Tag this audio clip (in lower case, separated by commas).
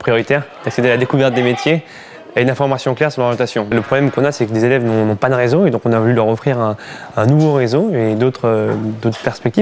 speech